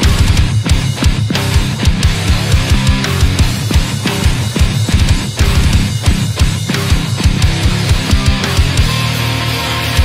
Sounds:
music

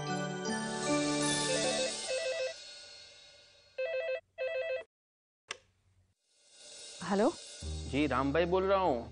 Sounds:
telephone bell ringing
music
speech
inside a large room or hall

